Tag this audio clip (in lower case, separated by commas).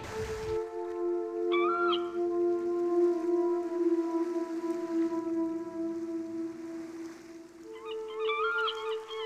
music